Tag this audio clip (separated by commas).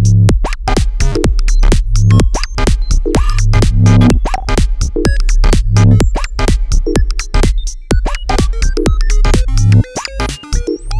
Electronic music, Sampler, Musical instrument, Synthesizer, Music